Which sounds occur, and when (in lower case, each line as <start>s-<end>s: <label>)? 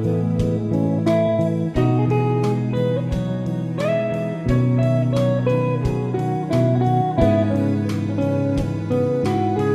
0.0s-9.7s: music